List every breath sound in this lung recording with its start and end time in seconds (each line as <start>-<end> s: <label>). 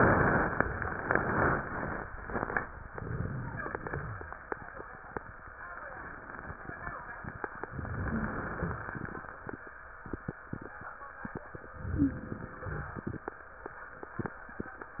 2.94-3.87 s: inhalation
3.87-4.44 s: exhalation
3.87-4.44 s: rhonchi
7.78-8.80 s: inhalation
8.05-8.37 s: wheeze
8.50-8.82 s: wheeze
8.82-9.37 s: exhalation
11.77-12.96 s: inhalation
11.78-12.29 s: wheeze
12.92-13.34 s: exhalation